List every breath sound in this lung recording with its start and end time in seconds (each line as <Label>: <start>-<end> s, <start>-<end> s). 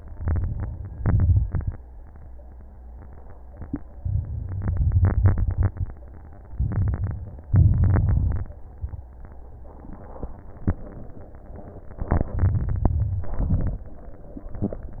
Inhalation: 0.13-0.96 s, 6.52-7.21 s, 12.09-12.95 s
Exhalation: 0.94-1.77 s, 7.50-8.53 s, 12.98-13.84 s
Crackles: 0.13-0.96 s, 0.96-1.80 s, 6.52-7.21 s, 7.50-8.53 s, 12.09-12.95 s, 12.98-13.84 s